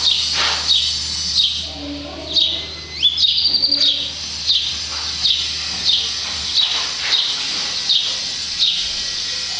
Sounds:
speech

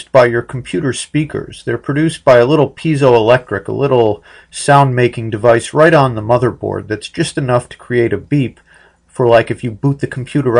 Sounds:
speech

